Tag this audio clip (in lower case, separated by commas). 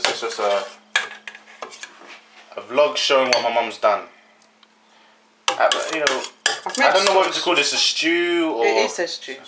dishes, pots and pans, eating with cutlery, cutlery